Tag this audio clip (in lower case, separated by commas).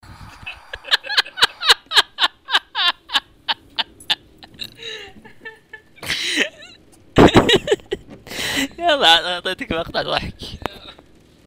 human voice, laughter